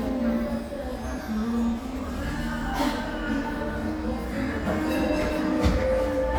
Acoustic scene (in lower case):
cafe